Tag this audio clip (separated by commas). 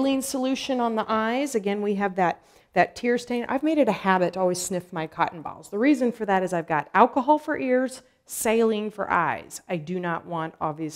Speech